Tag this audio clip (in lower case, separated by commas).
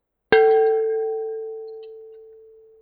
glass, bell